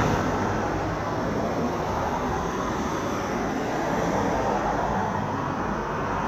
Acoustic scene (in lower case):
street